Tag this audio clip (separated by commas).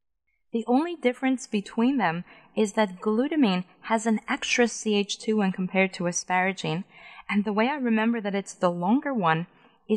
monologue, Speech